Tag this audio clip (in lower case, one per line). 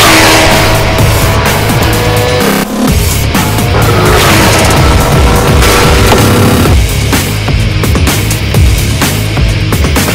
arrow